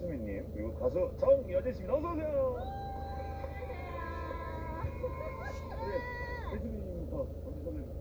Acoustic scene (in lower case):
car